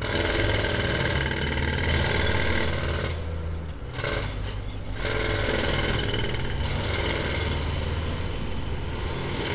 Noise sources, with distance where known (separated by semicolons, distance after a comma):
rock drill